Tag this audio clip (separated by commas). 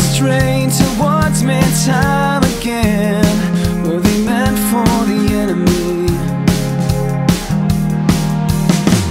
Music